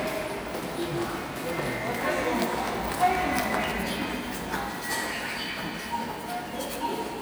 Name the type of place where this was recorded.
subway station